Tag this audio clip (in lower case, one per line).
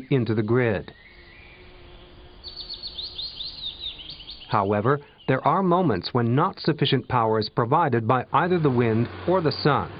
bird
bird song
tweet